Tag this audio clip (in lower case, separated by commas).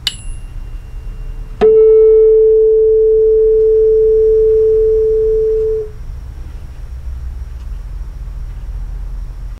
tuning fork